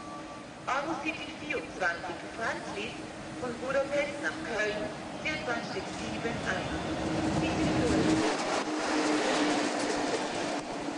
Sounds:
Speech

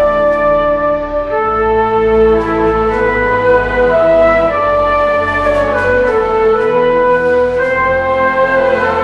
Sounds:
Flute, Music

